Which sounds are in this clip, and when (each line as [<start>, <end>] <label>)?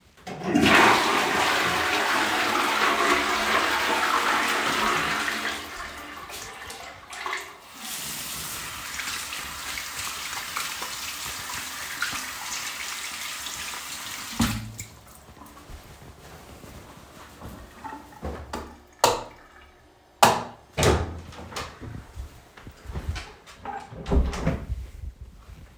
[0.19, 7.55] toilet flushing
[7.67, 14.94] running water
[19.00, 19.37] light switch
[20.19, 20.55] light switch
[20.75, 21.70] door
[23.98, 24.84] door